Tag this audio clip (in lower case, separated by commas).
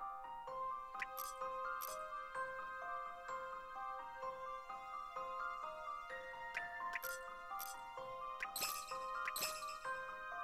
music